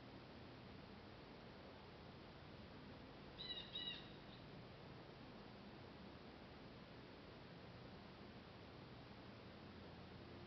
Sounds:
black capped chickadee calling

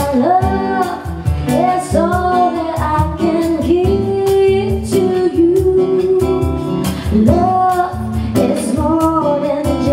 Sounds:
Female singing, Music

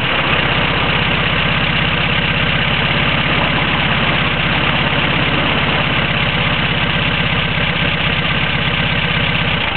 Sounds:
Heavy engine (low frequency), Vehicle

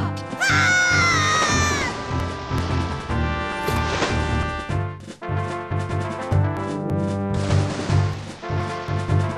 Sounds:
Music

